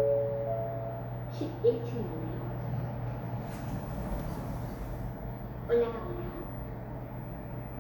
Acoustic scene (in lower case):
elevator